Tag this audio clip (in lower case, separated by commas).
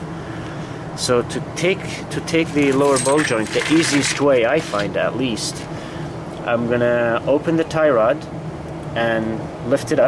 vehicle, speech